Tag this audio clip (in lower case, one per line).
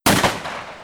explosion
gunshot